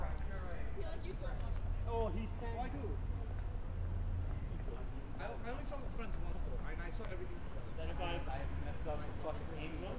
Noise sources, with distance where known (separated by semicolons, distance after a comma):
person or small group talking, near